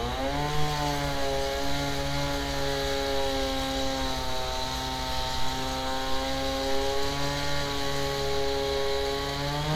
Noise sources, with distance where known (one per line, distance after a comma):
unidentified powered saw, near